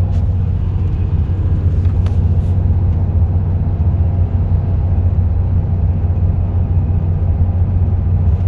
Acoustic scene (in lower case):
car